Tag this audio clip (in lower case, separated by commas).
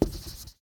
domestic sounds, writing